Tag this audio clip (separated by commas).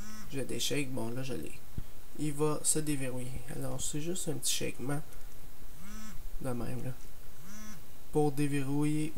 Speech